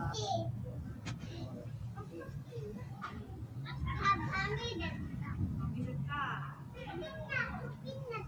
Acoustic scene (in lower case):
residential area